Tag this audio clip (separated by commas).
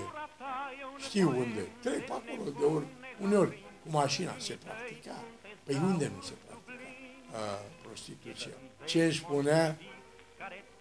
Speech, Music